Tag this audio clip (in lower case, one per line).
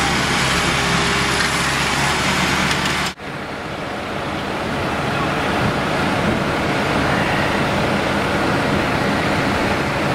speech
vehicle